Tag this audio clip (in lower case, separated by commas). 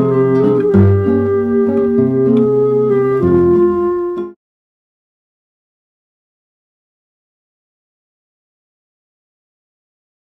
silence, music